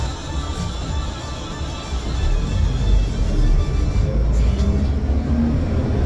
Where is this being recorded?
on a bus